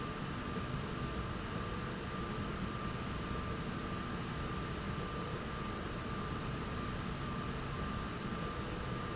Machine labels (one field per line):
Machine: slide rail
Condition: normal